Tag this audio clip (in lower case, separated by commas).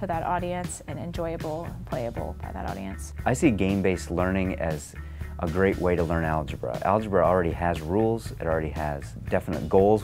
music, speech